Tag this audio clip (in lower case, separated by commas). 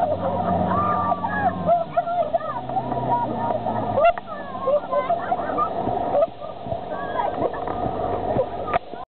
vehicle, boat, speedboat, speech